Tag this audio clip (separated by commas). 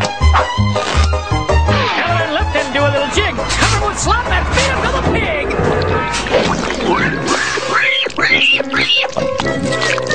Music, Speech